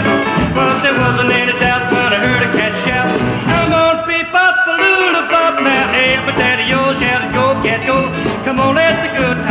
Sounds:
Music, Rock and roll

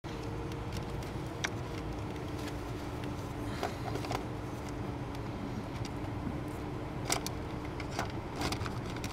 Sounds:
Vehicle

